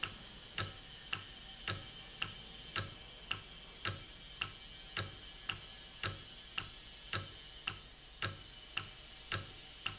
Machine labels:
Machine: valve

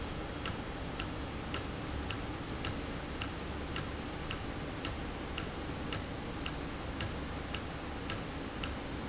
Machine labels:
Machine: valve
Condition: normal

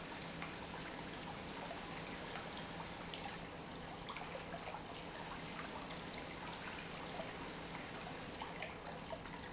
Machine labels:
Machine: pump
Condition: normal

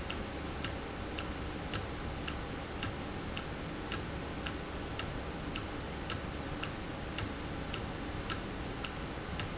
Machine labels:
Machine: valve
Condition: normal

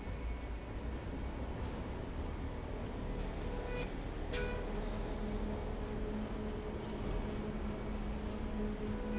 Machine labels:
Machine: slide rail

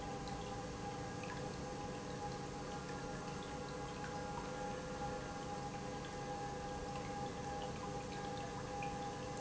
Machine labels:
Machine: pump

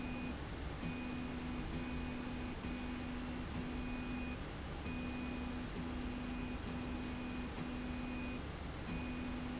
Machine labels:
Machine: slide rail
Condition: normal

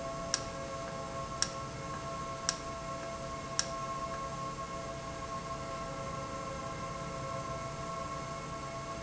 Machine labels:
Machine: valve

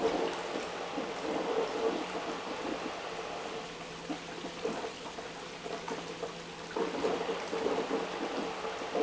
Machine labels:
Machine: pump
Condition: abnormal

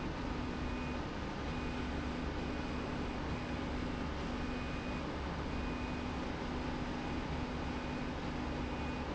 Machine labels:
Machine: slide rail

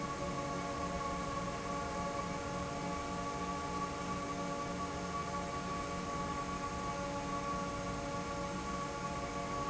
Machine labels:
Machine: fan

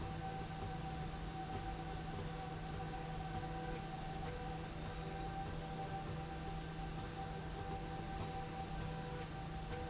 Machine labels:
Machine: slide rail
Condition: normal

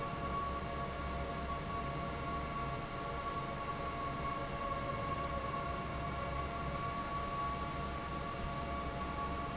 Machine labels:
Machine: fan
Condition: normal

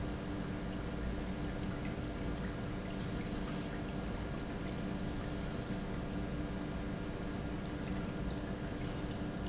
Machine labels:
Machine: pump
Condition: normal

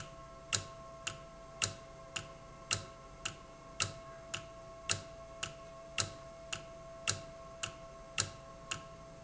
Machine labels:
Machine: valve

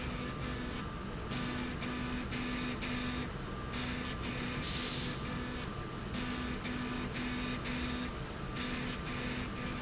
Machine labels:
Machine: slide rail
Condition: abnormal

